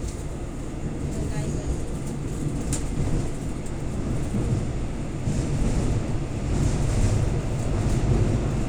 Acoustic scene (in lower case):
subway train